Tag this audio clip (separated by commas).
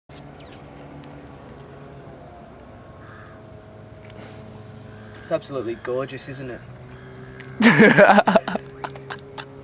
Speech